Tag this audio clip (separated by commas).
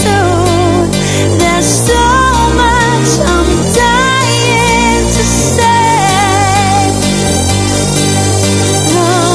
Music